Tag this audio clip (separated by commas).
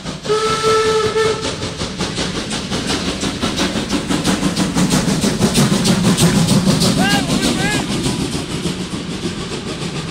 train whistling